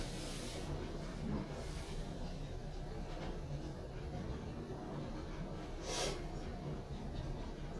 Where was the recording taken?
in an elevator